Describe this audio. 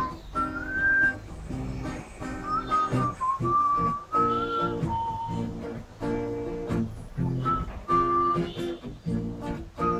Someone whistles a tune with an instrumental